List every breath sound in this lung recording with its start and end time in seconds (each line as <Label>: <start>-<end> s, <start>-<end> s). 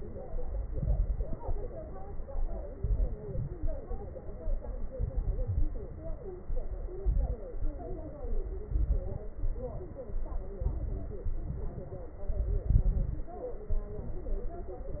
Inhalation: 0.66-1.38 s, 2.77-3.57 s, 4.94-5.68 s, 6.97-7.43 s, 8.66-9.25 s, 10.58-11.29 s, 12.35-13.28 s
Exhalation: 0.00-0.64 s, 1.44-2.66 s, 3.61-4.82 s, 5.76-6.97 s, 7.56-8.51 s, 9.42-10.56 s, 11.31-12.25 s, 13.74-14.99 s
Crackles: 0.66-1.38 s, 2.77-3.57 s, 4.94-5.68 s, 6.97-7.43 s, 8.66-9.25 s, 10.58-11.29 s, 12.35-13.28 s